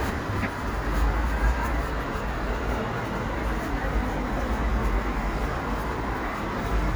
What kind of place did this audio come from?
street